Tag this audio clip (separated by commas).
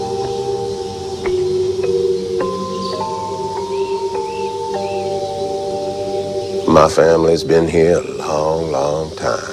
Singing bowl